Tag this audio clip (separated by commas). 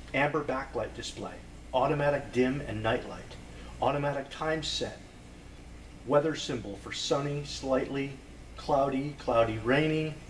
Speech